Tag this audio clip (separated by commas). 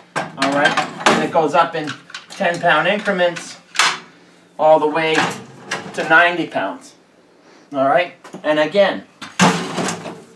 inside a small room, Speech